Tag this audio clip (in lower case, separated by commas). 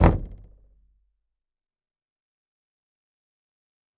door, knock, home sounds